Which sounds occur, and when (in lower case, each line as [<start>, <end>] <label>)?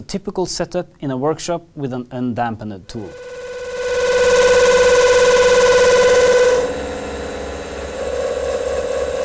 [0.00, 2.86] background noise
[2.09, 3.08] male speech
[2.84, 2.93] tick
[2.87, 9.24] mechanisms